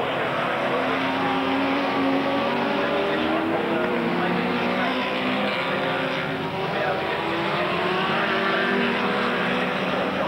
A vehicle revving up its engine and racing by